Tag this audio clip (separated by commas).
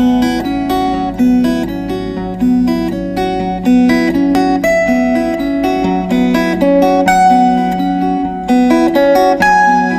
Strum, Music, Plucked string instrument, Acoustic guitar, Guitar, Musical instrument